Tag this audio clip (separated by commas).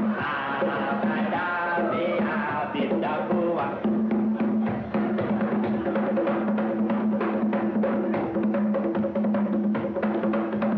playing congas